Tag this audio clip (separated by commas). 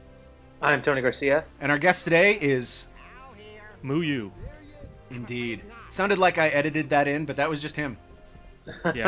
Speech, Music